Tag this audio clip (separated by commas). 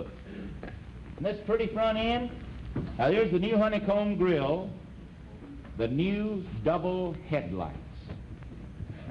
Speech